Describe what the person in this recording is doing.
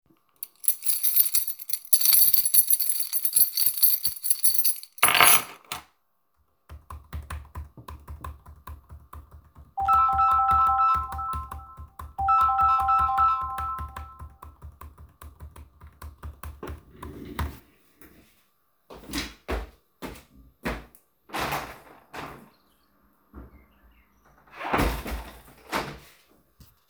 I was moving a keychain and then placed it on the table. I started typing on the keyboard, and while typing my phone started ringing and I continued typing for a few seconds. After that I moved the desk chair and walked to the window. I opened and closed the window and then returned to the desk